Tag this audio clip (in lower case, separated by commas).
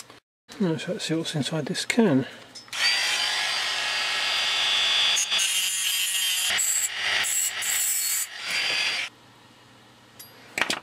speech, inside a small room